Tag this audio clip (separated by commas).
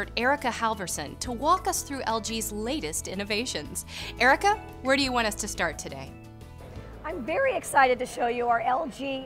Music, Speech